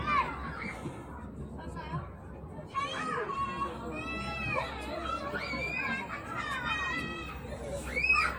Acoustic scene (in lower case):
park